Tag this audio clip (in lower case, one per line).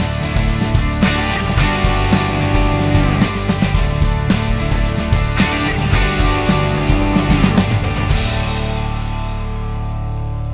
music